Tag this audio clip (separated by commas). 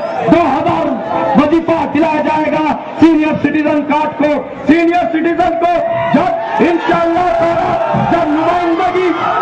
Speech, monologue, Male speech